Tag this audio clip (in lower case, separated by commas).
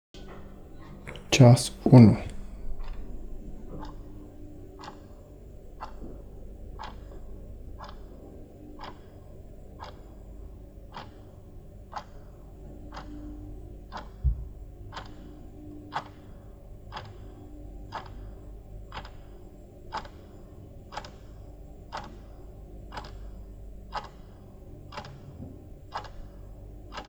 mechanisms, clock